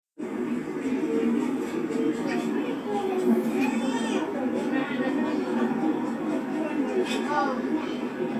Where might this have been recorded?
in a park